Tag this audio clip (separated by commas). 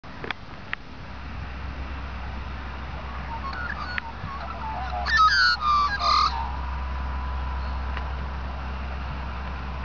magpie calling